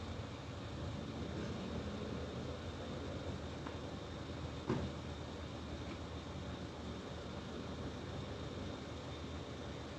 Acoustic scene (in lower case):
residential area